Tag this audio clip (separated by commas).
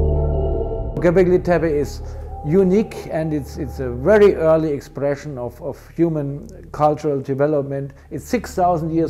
Music, Speech